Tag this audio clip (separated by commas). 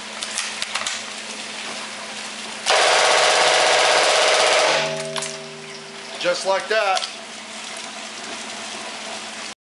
Speech